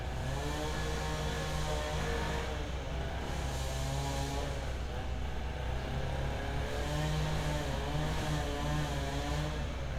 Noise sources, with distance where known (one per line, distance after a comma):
unidentified powered saw, near